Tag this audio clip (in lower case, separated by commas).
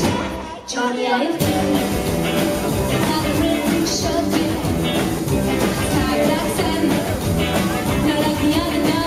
music